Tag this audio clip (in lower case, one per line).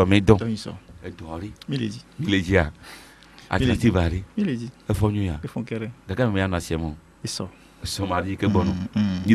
speech